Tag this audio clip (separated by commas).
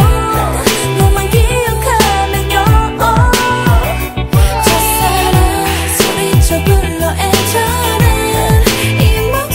Music, inside a large room or hall